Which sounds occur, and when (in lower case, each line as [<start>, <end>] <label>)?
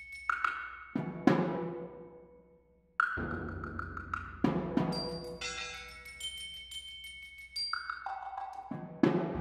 [0.00, 9.40] music